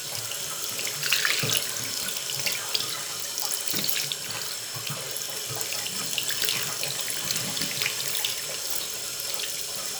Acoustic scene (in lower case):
restroom